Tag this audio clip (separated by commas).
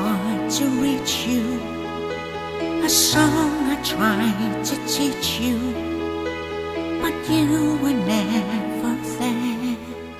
fiddle, Music, Musical instrument